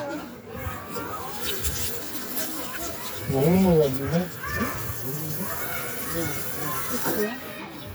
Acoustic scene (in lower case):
residential area